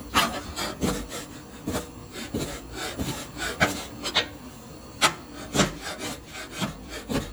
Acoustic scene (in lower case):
kitchen